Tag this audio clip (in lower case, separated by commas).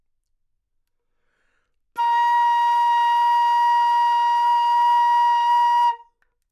wind instrument, music, musical instrument